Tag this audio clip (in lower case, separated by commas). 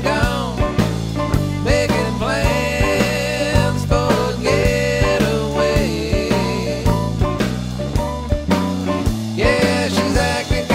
dance music, music